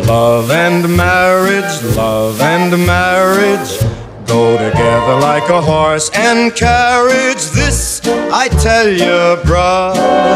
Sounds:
music

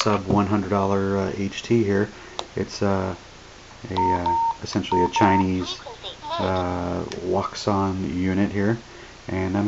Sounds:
inside a small room
speech

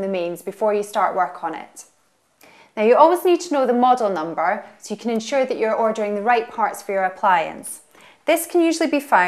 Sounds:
speech

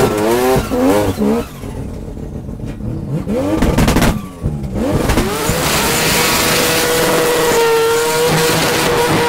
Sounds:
skidding
car
tire squeal

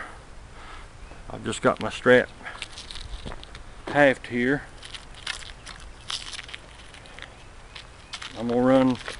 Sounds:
footsteps
speech

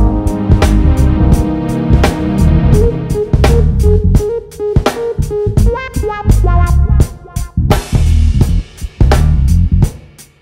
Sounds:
music

